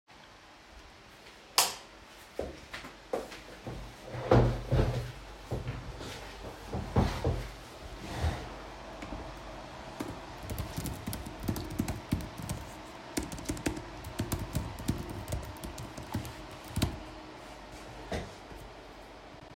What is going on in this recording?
tuned on the light switch, walked over to the chair, sat on the chair then began typing on a keyboard